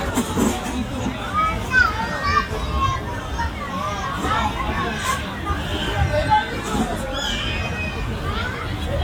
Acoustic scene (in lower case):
park